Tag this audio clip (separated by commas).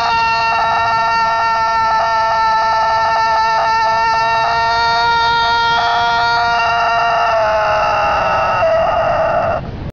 rooster